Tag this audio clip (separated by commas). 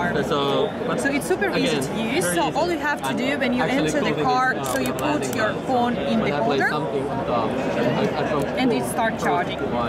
Speech